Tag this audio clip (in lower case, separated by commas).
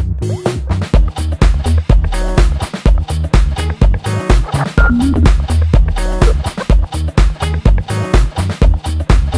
music, background music